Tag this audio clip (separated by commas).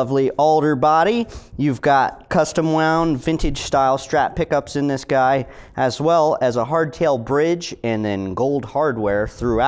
Speech